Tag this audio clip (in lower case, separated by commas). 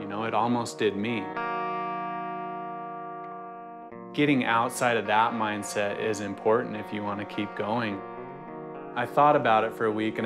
music, speech